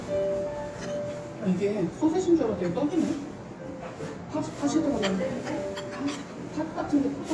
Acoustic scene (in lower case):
restaurant